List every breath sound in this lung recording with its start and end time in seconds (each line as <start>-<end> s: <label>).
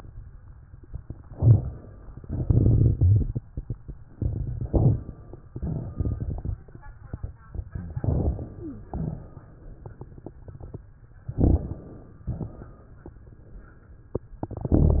1.25-2.06 s: inhalation
2.23-3.91 s: exhalation
2.23-3.91 s: crackles
4.68-5.35 s: inhalation
5.51-6.81 s: exhalation
5.51-6.81 s: crackles
7.99-8.86 s: inhalation
8.59-8.84 s: wheeze
8.90-9.65 s: exhalation
8.90-10.84 s: crackles
11.28-12.24 s: inhalation
11.28-12.24 s: crackles
12.24-13.02 s: exhalation